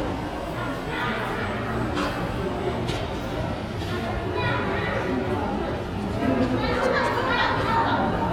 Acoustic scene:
crowded indoor space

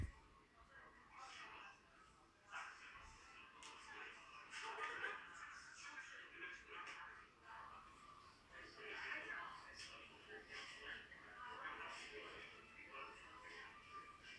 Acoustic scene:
crowded indoor space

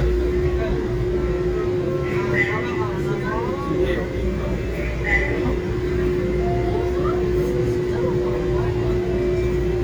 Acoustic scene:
subway train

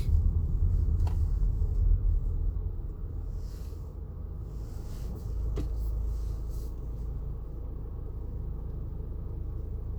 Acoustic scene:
car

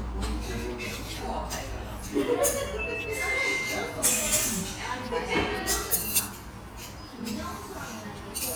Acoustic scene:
restaurant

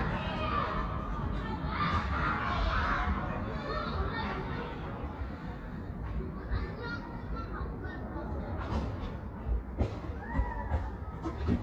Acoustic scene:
residential area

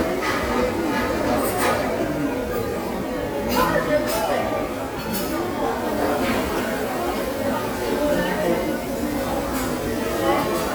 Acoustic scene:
restaurant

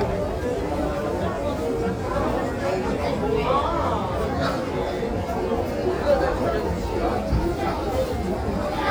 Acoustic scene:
crowded indoor space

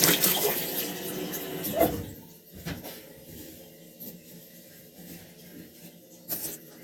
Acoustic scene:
restroom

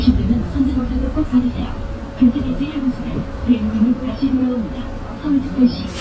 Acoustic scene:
bus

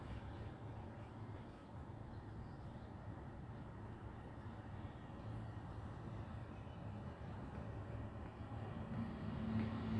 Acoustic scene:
residential area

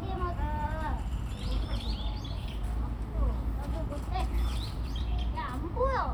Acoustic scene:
park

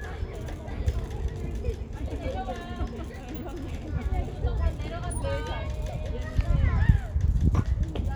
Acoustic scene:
residential area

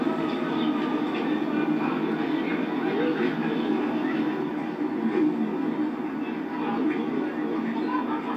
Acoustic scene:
park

